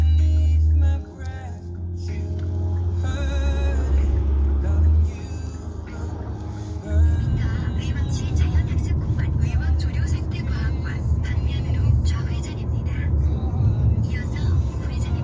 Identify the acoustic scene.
car